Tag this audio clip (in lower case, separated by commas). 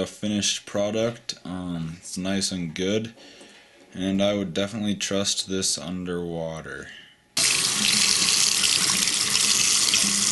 sink (filling or washing), faucet, water